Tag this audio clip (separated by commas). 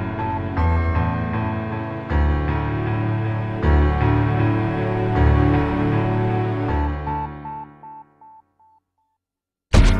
Music